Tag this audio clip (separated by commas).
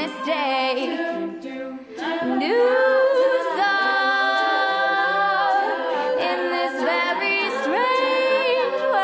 A capella